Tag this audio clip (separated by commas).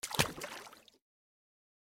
Water, splatter, Liquid